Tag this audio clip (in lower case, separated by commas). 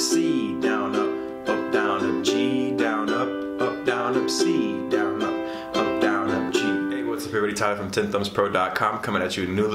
playing ukulele